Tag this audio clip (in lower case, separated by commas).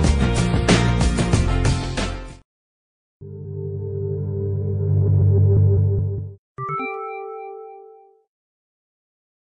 music